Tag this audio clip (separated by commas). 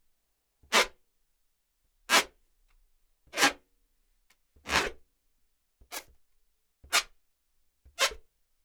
Squeak